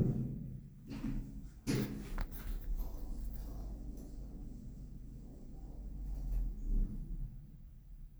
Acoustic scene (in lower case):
elevator